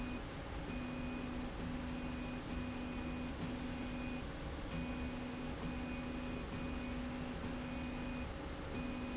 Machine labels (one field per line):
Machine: slide rail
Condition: normal